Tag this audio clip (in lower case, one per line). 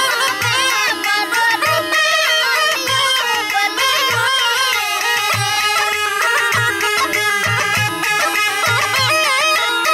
music